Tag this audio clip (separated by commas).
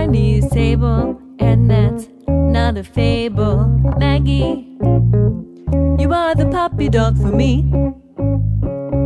Music